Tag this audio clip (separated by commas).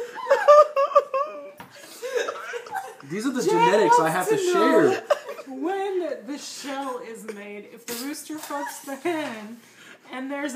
Speech